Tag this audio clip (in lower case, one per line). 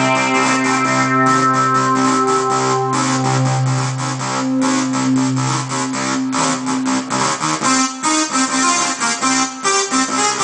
music